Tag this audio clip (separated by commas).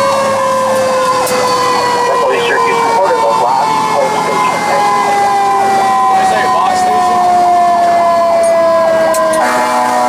Engine, Speech, Vehicle, Medium engine (mid frequency)